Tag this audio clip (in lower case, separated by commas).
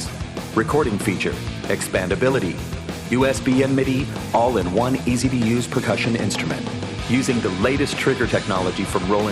speech, music